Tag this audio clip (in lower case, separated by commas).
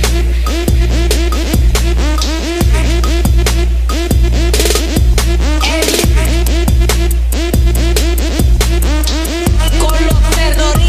music, house music